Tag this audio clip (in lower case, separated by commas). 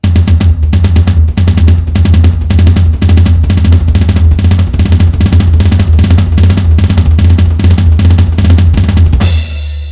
snare drum, drum, musical instrument, music, hi-hat, bass drum